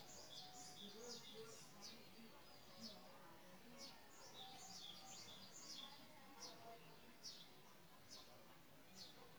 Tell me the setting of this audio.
park